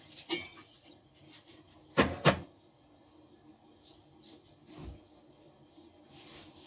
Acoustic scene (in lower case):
kitchen